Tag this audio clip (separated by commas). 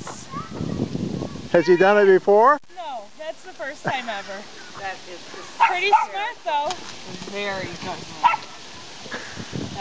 Bow-wow, Animal, Dog, Speech, Domestic animals